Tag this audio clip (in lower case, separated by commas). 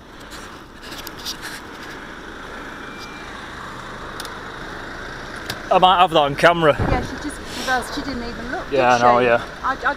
speech